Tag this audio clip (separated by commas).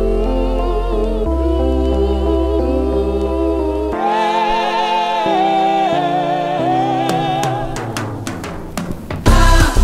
Music, Humming